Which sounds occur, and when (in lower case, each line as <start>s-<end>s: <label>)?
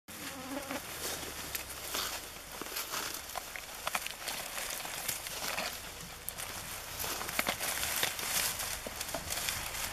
0.1s-9.9s: rustle
0.1s-0.7s: bee or wasp
3.8s-9.9s: patter